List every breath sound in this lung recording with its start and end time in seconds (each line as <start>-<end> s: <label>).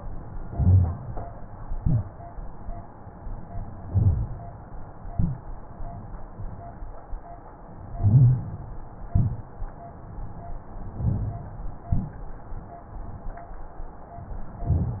0.46-1.16 s: inhalation
1.60-2.18 s: exhalation
3.82-4.41 s: inhalation
5.07-5.49 s: exhalation
7.98-8.64 s: inhalation
9.08-9.75 s: exhalation
10.96-11.63 s: inhalation
11.84-12.27 s: exhalation